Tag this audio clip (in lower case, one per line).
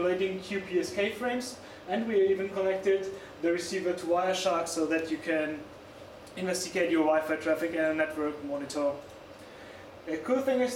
speech